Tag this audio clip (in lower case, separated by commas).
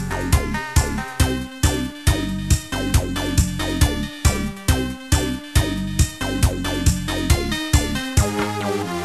theme music, house music, music